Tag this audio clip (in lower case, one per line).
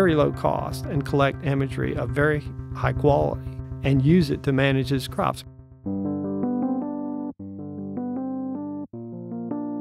speech
music